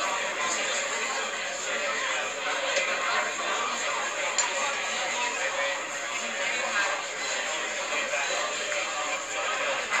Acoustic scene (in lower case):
crowded indoor space